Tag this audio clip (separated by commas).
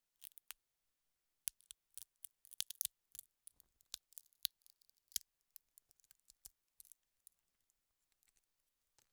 Crack